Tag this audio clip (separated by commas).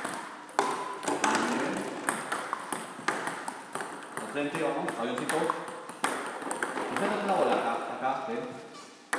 playing table tennis